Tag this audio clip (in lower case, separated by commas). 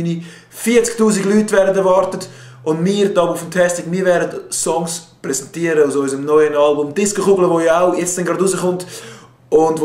speech